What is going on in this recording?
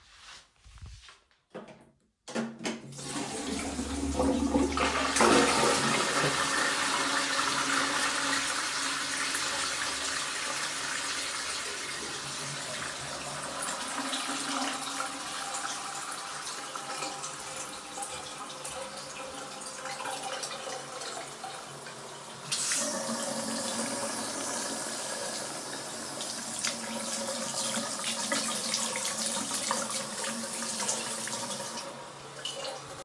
I flushed the toilet, then turned on the faucet in the same area of the room, washed my hands which created some splashing, then turned it off.